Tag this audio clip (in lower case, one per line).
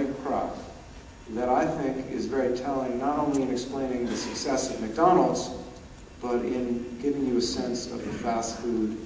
speech
man speaking
narration